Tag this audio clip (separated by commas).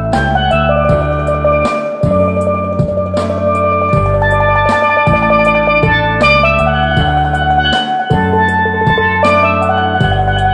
Hammond organ, Music